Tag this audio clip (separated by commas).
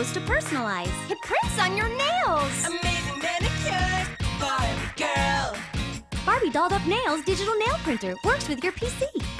Speech, Music